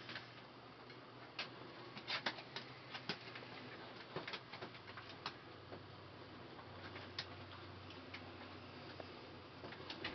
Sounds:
snake

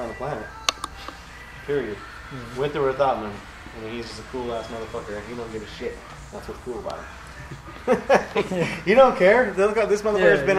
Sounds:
speech
music

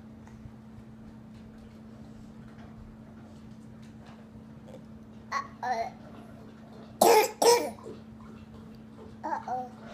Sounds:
people coughing
cough
babbling

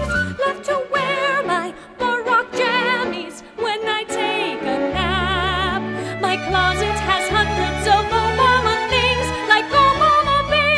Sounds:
christmas music
music

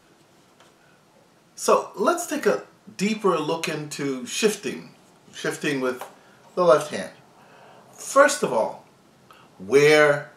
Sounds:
speech

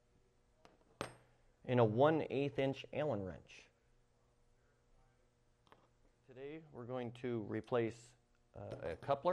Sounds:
speech

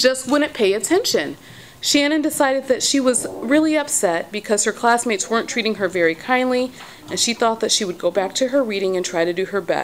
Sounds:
speech
monologue

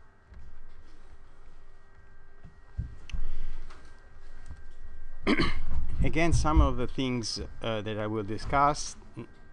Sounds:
speech

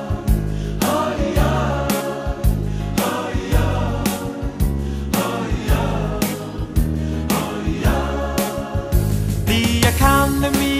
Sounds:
music
exciting music
tender music

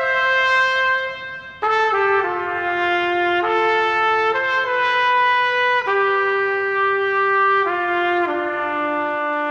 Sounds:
trumpet
music

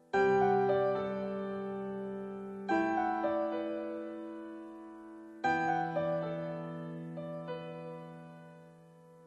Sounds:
music

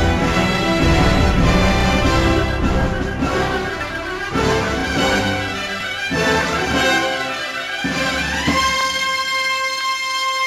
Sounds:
music

